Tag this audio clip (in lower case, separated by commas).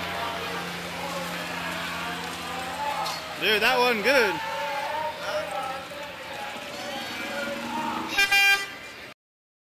vehicle, speech